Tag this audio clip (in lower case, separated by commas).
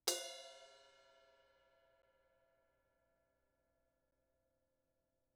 musical instrument, music, cymbal, percussion, crash cymbal